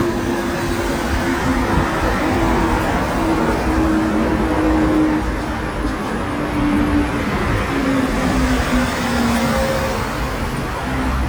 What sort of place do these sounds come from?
street